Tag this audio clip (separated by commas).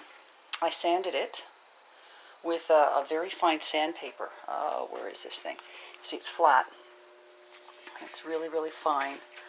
Speech